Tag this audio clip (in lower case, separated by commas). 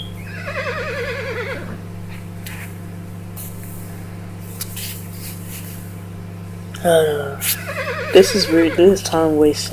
speech